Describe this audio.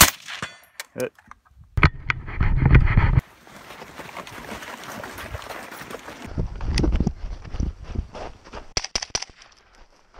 A gun is fired and people shuffle along